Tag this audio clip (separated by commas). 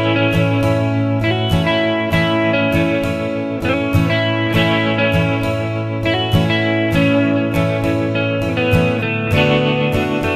Musical instrument, Acoustic guitar, Plucked string instrument, Guitar, Music